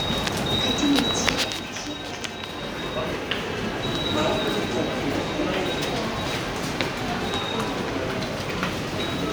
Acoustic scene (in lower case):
subway station